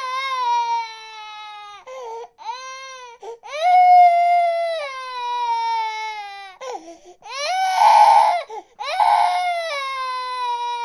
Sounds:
baby crying

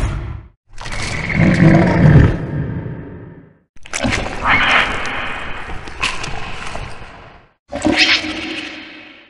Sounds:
Sound effect

